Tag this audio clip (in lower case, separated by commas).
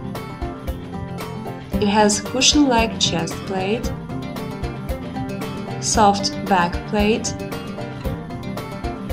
music, speech